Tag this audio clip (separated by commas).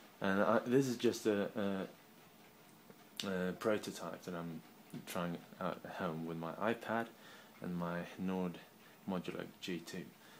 Speech